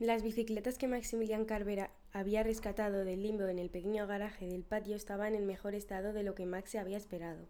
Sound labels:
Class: speech